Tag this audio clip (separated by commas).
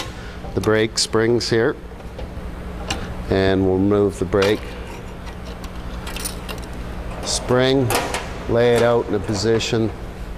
Speech